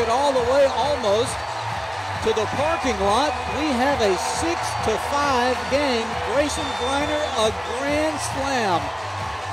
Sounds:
Speech, Music

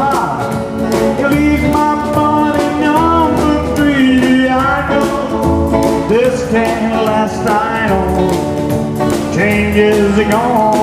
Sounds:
Music

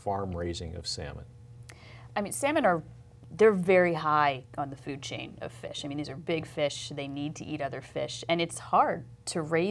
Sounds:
Speech, woman speaking

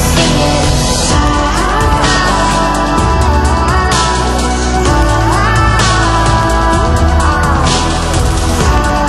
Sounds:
Music, Soundtrack music

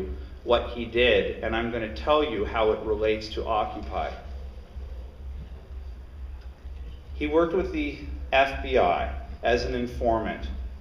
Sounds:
Speech

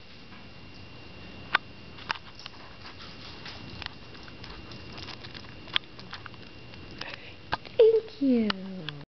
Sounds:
Speech

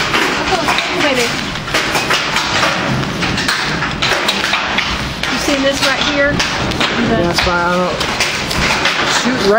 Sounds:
Speech

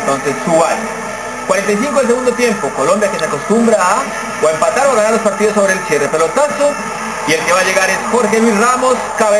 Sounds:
Speech

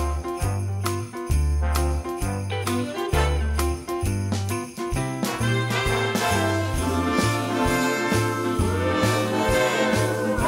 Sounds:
Jingle bell, Music

